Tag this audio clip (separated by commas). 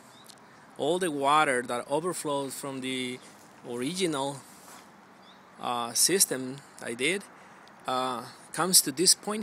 Speech